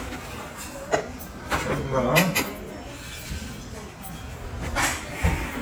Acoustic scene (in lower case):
restaurant